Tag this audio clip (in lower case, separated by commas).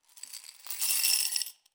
glass, coin (dropping), domestic sounds